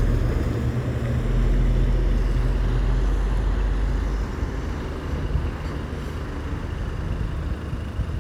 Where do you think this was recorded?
on a street